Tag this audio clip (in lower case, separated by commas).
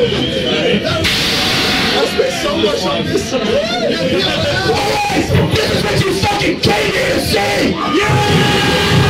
music, speech